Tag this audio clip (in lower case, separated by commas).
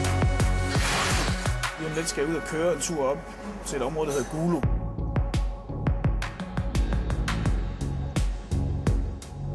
music, speech